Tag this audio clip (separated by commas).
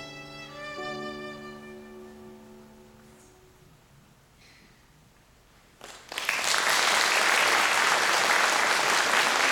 Musical instrument, Violin, Music